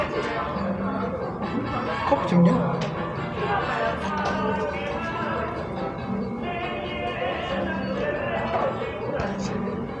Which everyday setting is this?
cafe